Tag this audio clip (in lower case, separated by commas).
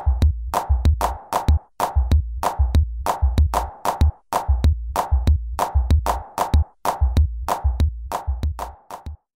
music